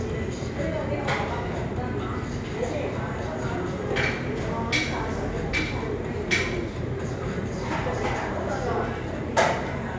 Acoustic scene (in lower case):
cafe